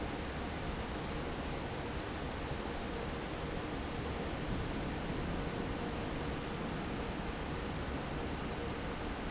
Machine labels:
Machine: fan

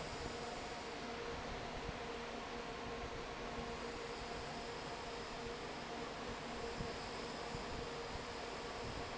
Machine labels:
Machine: fan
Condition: normal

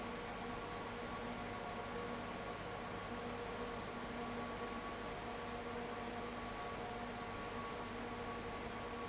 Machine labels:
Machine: fan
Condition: abnormal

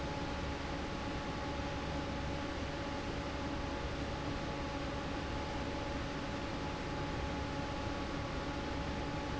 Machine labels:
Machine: fan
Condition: normal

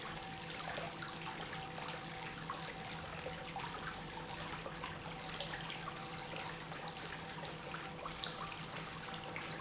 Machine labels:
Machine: pump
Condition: normal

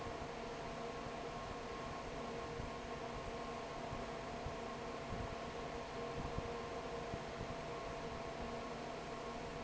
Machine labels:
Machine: fan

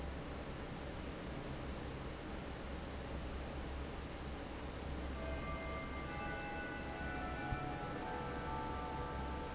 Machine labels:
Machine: fan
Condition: normal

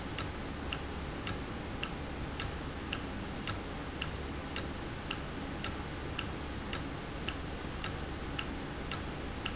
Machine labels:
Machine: valve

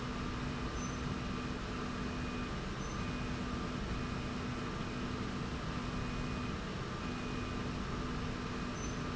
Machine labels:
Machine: slide rail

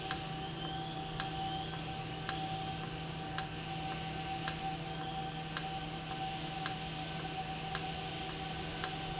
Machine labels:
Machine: valve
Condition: normal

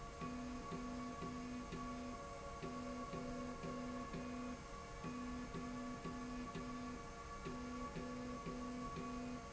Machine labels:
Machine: slide rail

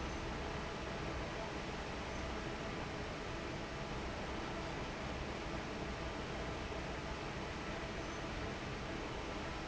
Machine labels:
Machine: fan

